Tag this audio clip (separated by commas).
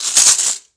Rattle